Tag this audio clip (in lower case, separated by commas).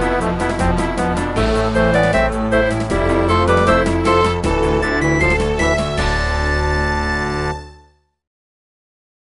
music, theme music